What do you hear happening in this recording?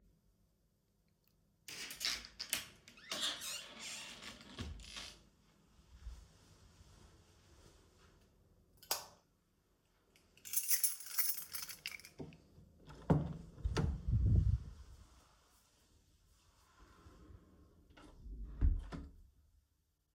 I closed the wardrobe door and switched off the light in the hallway. Then I opened the living room door, still holding my keys. Then I closed the door behind me.